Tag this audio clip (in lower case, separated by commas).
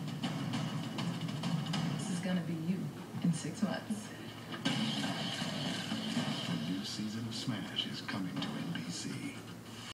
music, speech